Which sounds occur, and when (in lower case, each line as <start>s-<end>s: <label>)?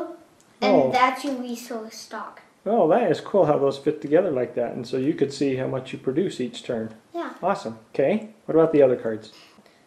0.0s-0.2s: child speech
0.0s-9.8s: background noise
0.0s-9.8s: conversation
0.3s-0.4s: tick
0.6s-2.4s: child speech
1.2s-1.3s: tick
2.6s-6.9s: man speaking
4.0s-4.1s: tick
7.1s-7.4s: child speech
7.4s-7.7s: man speaking
7.9s-8.2s: man speaking
8.5s-9.3s: man speaking
9.3s-9.6s: surface contact
9.6s-9.8s: breathing